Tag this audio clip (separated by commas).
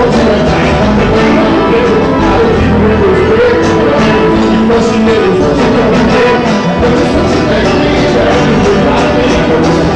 Music